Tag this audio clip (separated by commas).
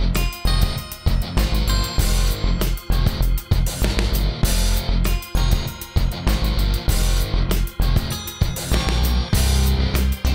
Music